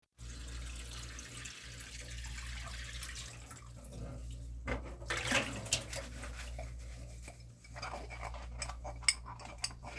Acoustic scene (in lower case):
kitchen